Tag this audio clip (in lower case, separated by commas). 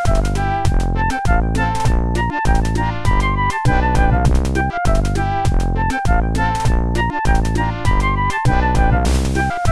music